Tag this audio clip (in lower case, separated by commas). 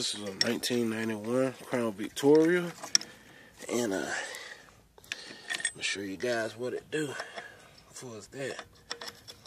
speech